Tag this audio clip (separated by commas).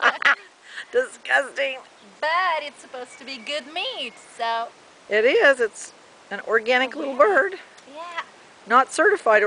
Speech